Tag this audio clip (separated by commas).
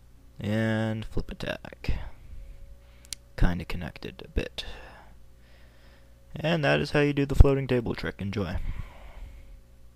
Speech